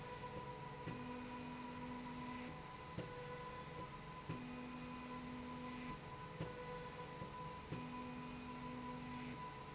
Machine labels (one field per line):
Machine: slide rail